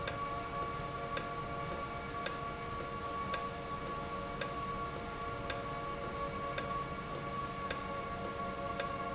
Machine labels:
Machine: valve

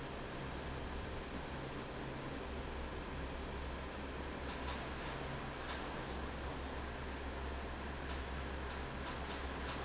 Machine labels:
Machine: fan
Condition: normal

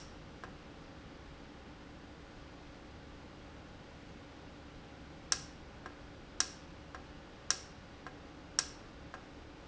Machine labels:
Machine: valve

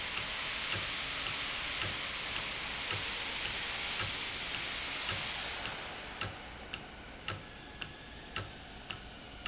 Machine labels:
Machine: valve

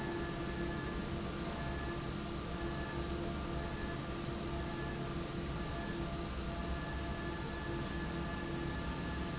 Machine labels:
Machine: fan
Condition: normal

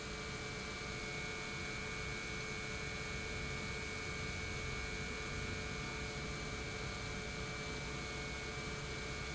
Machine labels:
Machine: pump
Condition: normal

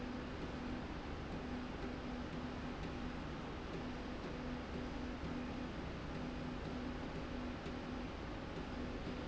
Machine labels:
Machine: slide rail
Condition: normal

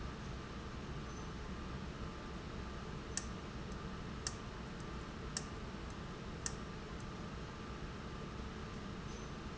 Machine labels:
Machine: valve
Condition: abnormal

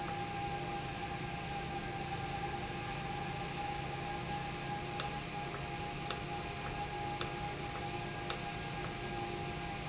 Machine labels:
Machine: valve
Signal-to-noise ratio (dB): -6 dB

